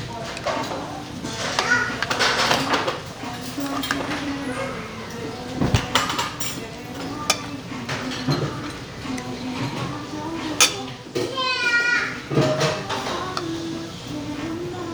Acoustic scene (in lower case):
restaurant